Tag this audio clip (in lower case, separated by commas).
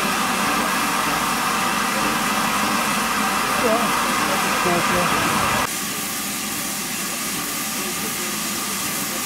speech, train, rail transport, vehicle, train wagon